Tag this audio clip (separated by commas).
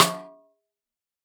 Snare drum, Musical instrument, Music, Percussion, Drum